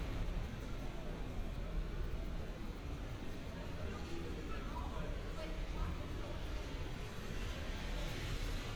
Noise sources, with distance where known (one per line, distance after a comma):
person or small group talking, far